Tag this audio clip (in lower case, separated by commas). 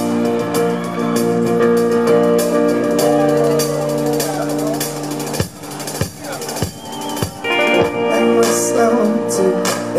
speech, music